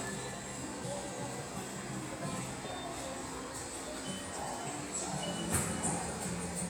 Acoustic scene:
subway station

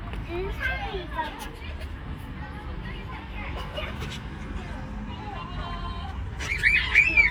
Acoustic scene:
park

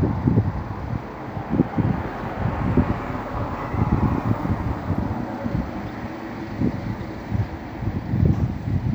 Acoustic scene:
street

